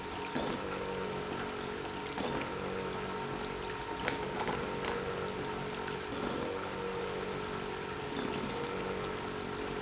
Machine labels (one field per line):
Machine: pump